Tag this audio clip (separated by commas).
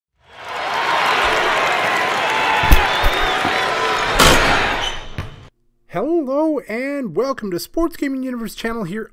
Basketball bounce, Speech